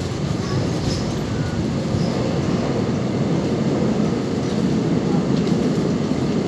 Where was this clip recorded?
on a subway train